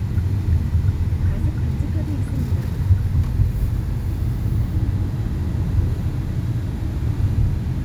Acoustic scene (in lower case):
car